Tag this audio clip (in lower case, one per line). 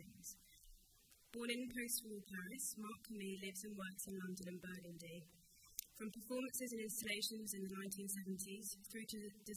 speech